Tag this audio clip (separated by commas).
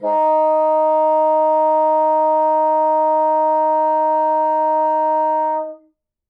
Music, Musical instrument, Wind instrument